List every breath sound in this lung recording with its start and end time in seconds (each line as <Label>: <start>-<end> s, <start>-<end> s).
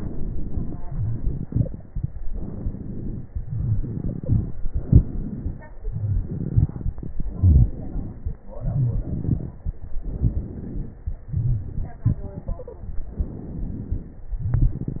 Inhalation: 0.85-2.19 s, 3.37-4.56 s, 5.77-7.29 s, 8.49-10.05 s, 11.25-13.07 s, 14.35-15.00 s
Exhalation: 0.00-0.80 s, 2.17-3.35 s, 4.58-5.76 s, 7.29-8.48 s, 10.04-11.24 s, 13.08-14.36 s
Stridor: 1.51-1.77 s, 3.98-4.36 s, 12.42-12.87 s
Crackles: 0.00-0.80 s, 2.17-3.35 s, 4.58-5.76 s, 5.79-7.24 s, 7.29-8.48 s, 8.50-10.01 s, 10.05-11.24 s, 13.08-14.36 s